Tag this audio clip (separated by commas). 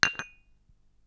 Domestic sounds, dishes, pots and pans